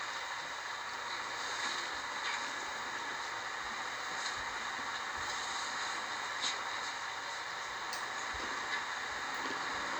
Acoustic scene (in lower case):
bus